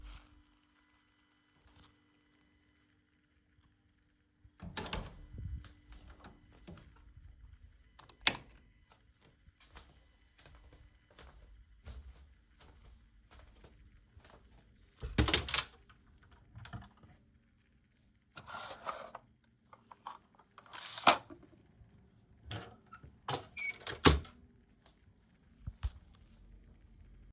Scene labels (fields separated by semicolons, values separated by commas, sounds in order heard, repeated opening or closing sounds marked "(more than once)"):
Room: bedroom; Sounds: door, light switch, wardrobe or drawer (more than once)